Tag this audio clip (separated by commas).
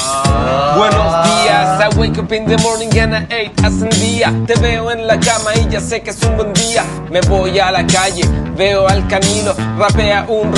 Music